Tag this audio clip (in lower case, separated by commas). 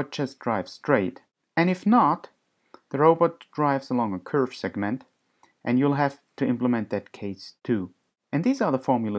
speech